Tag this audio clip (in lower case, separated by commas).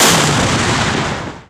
explosion, boom